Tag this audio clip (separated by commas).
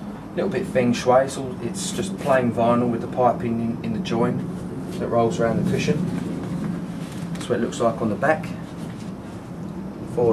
Speech